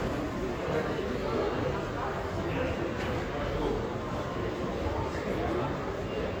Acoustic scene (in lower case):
crowded indoor space